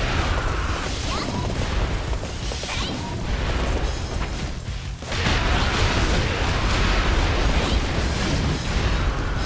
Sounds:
speech
music

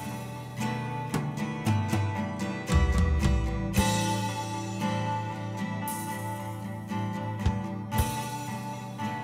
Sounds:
music

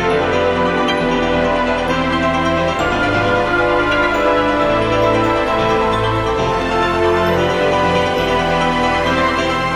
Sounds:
music
theme music

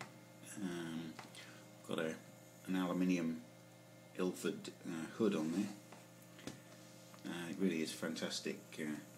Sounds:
speech

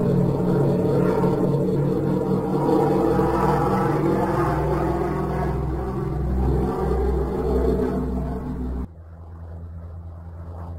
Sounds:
airplane

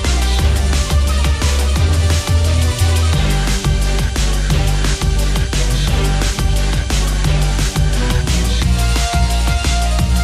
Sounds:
music

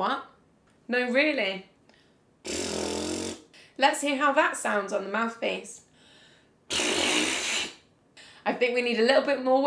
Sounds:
speech

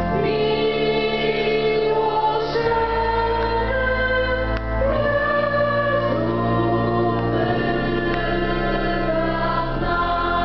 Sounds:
keyboard (musical)
music
organ
classical music
choir
musical instrument

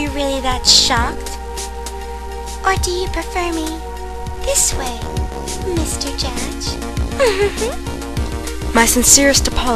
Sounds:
music
speech

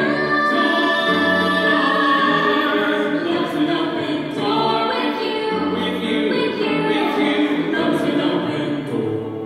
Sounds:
music

